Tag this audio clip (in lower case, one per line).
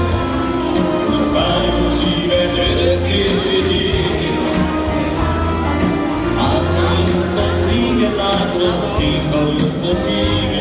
background music
speech
music
soundtrack music